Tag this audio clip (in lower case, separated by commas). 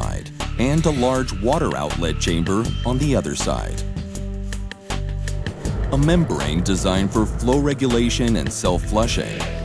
speech, music